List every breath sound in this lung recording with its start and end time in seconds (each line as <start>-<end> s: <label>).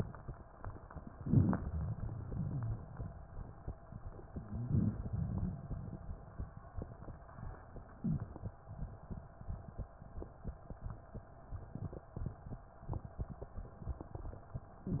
1.10-1.65 s: rhonchi
1.16-2.22 s: inhalation
2.33-3.11 s: exhalation
4.27-4.99 s: rhonchi
4.63-5.62 s: inhalation
5.64-6.42 s: exhalation